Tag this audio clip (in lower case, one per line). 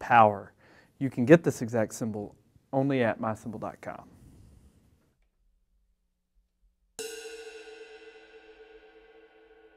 music
speech
cymbal
hi-hat